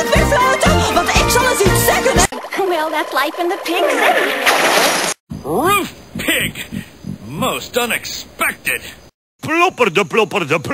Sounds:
Speech, Music

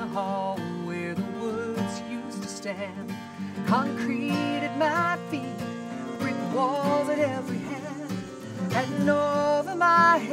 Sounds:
Music

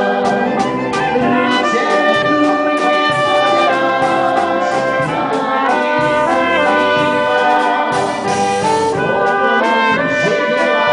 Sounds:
Brass instrument, Bowed string instrument, Musical instrument, Trumpet, Music

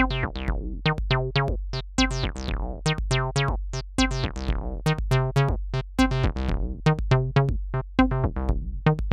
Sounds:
Music, Disco

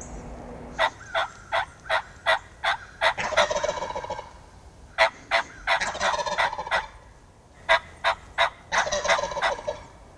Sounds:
turkey gobbling

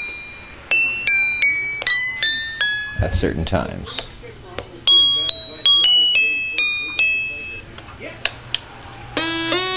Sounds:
Musical instrument, Piano, Keyboard (musical), Speech, Music, Effects unit

